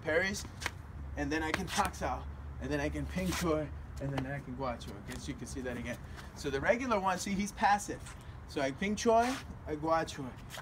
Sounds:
Speech

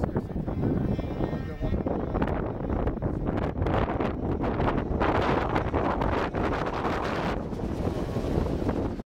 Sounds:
Speech

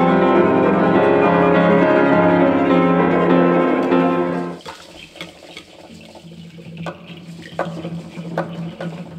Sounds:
Musical instrument, Music, Piano, Bowed string instrument, Classical music, Cello

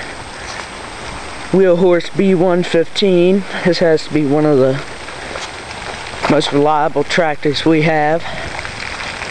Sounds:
Speech

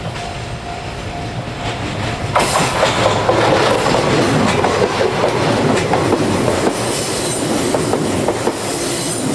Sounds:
outside, rural or natural, Train, Vehicle

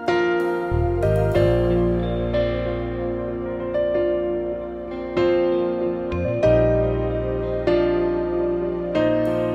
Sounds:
Music

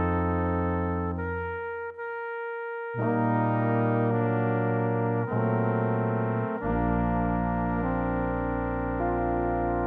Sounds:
playing cornet

